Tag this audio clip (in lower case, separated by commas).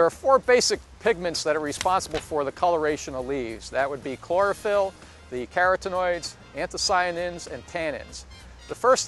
speech